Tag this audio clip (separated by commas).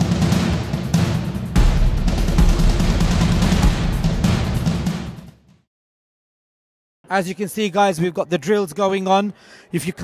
Music, Speech